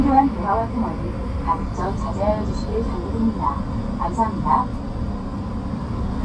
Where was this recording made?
on a bus